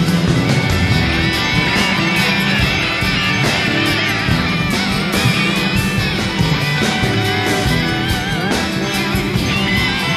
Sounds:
Music

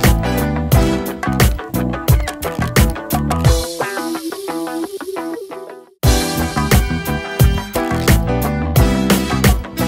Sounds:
Music

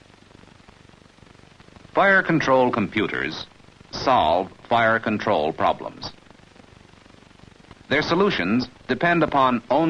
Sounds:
Speech

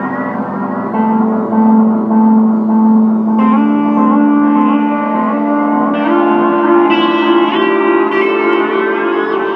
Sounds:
Music, Musical instrument

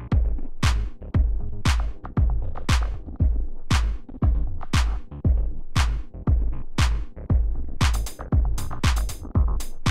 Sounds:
Sampler, Musical instrument, Piano, Synthesizer, Keyboard (musical), Music

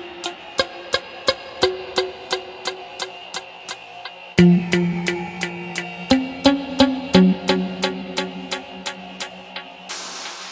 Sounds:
Throbbing, Mains hum

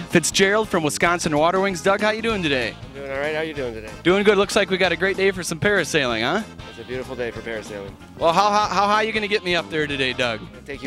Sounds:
Speech, Music

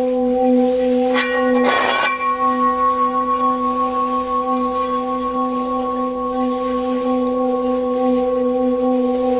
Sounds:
singing bowl

